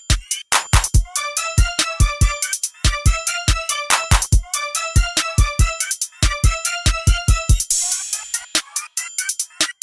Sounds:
Music

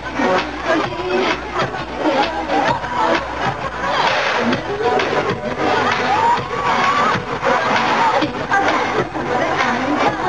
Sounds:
Music

